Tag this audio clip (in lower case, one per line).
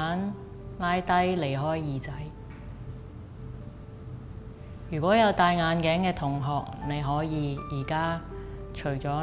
speech
music